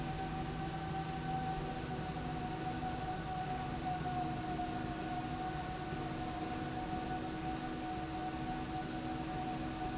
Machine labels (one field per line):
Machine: slide rail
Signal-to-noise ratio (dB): -6 dB